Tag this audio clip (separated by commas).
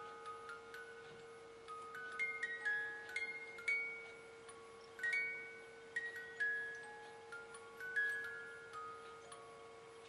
Music